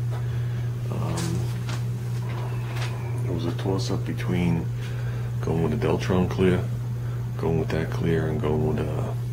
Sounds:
Speech

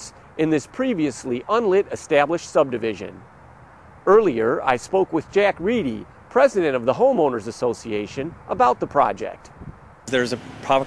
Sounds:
Speech

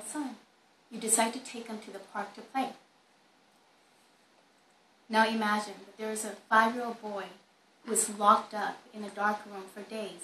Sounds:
Speech, Female speech

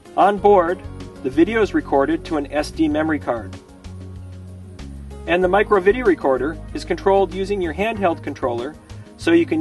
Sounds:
Music, Speech

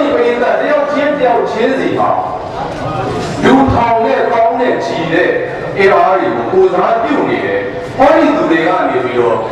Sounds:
man speaking, Narration, Speech

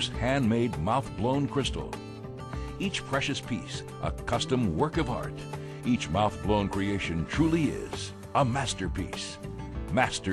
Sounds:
Music, Speech

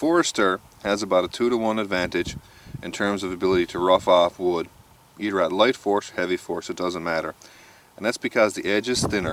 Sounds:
Speech

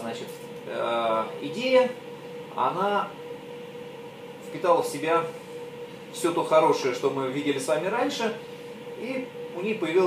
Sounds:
Speech

